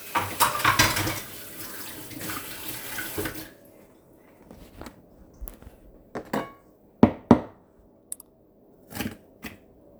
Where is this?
in a kitchen